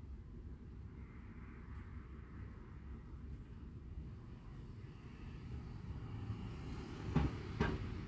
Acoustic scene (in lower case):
residential area